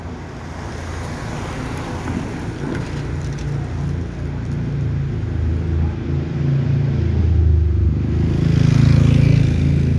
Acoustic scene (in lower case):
residential area